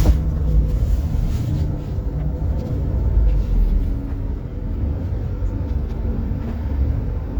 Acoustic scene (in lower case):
bus